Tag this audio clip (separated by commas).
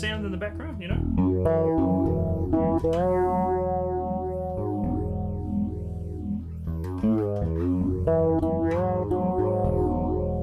Speech, Guitar, Plucked string instrument, Music, Musical instrument, Effects unit, Bass guitar